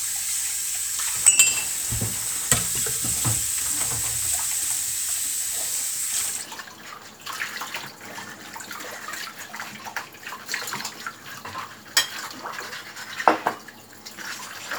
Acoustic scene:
kitchen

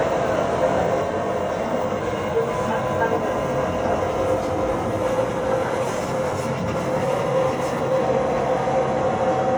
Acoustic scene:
subway train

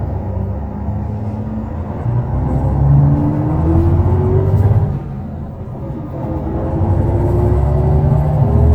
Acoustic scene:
bus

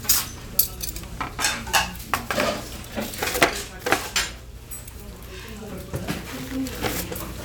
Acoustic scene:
restaurant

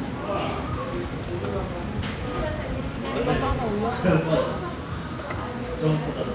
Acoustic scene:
restaurant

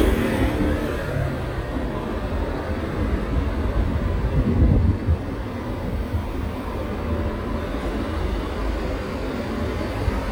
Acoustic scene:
street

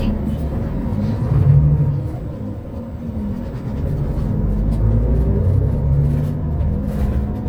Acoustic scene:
bus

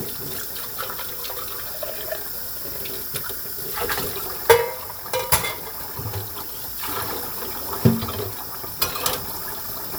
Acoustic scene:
kitchen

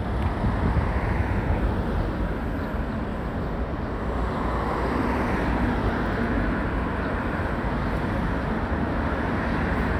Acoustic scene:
residential area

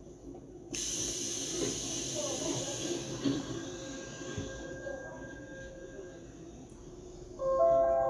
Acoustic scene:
subway train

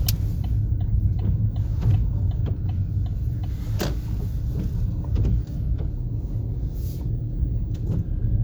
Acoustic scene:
car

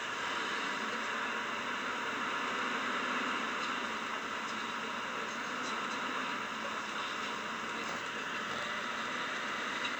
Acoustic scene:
bus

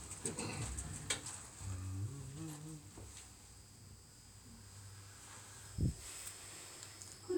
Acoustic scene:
elevator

